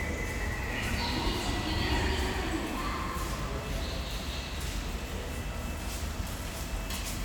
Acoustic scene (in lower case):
subway station